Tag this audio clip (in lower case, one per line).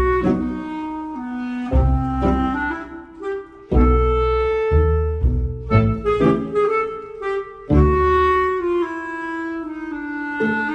wind instrument
harmonica